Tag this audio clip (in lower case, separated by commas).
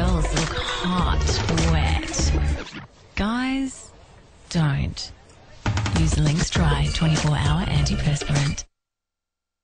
music, speech